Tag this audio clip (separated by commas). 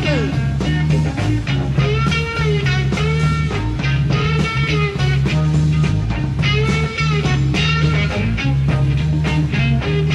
Psychedelic rock, Guitar, Music, Rock music